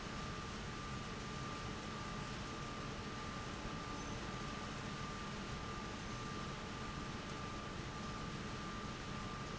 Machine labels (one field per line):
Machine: fan